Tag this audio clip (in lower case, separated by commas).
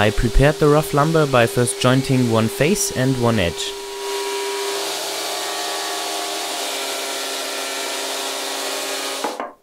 sawing, rub, wood